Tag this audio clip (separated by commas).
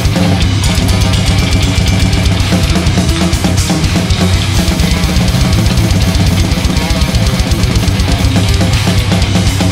playing bass drum